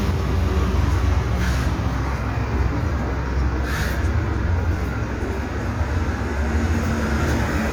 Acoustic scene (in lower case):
street